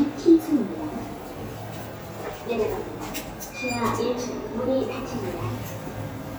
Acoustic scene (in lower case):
elevator